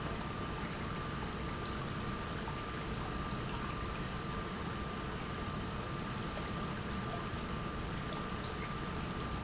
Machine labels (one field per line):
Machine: pump